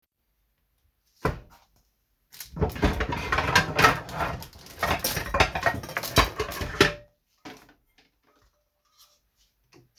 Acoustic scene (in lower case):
kitchen